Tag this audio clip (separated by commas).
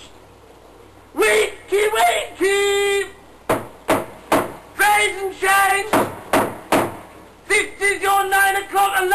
Speech, inside a small room